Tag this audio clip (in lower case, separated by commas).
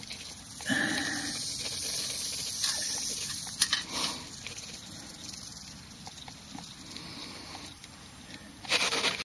snake, hiss